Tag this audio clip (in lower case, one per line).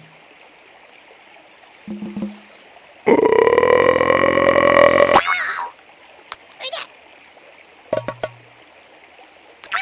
frog croaking